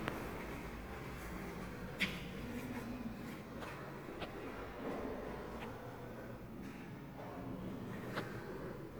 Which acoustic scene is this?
elevator